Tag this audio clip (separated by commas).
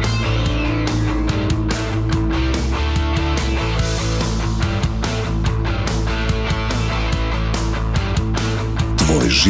Speech, Music